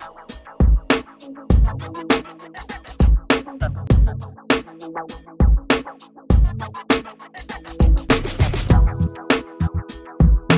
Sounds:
music

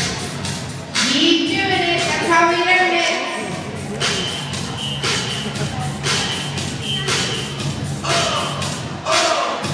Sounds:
speech, music

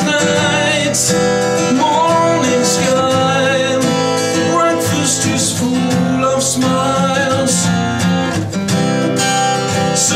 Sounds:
music

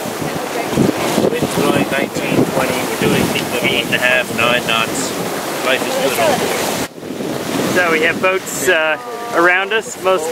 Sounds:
speech, sailboat

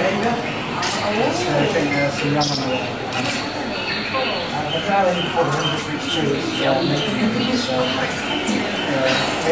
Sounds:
otter growling

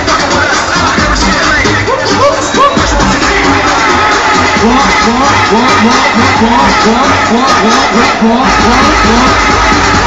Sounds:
techno, music, electronic music

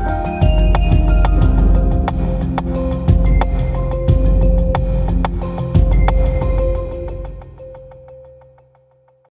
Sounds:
theme music, music

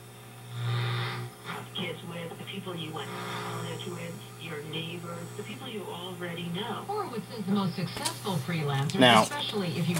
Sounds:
speech, radio

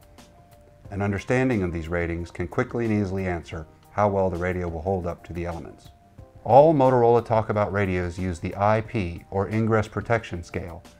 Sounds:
music, speech

